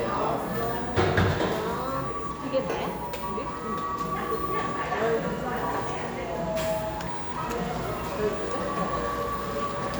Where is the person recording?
in a cafe